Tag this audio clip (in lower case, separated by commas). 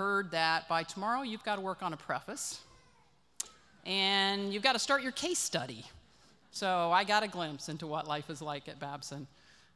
monologue, woman speaking, speech